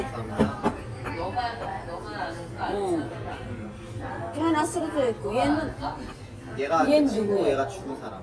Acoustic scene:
crowded indoor space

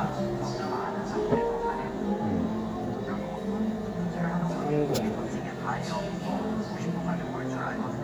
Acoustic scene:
cafe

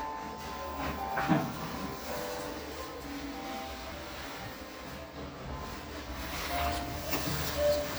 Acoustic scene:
restroom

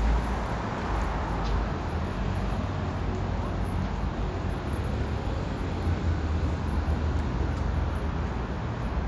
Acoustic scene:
street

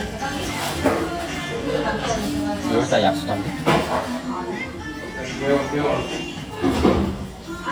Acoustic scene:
restaurant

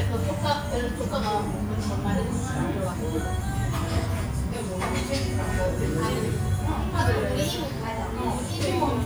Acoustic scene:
restaurant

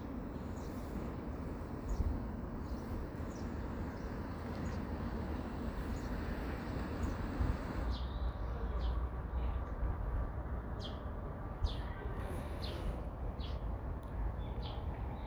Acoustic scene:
residential area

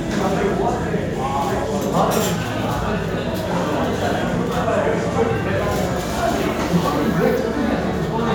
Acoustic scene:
restaurant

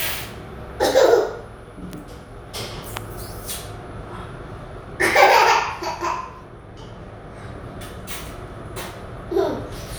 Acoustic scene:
elevator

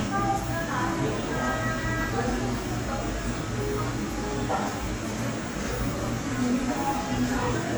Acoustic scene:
cafe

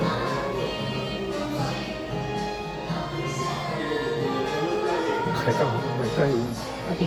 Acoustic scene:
cafe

